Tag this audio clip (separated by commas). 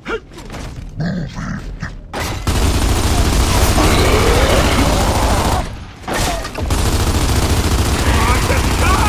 Mechanisms